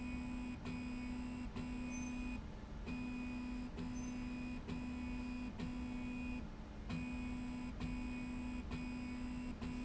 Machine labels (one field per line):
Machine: slide rail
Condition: normal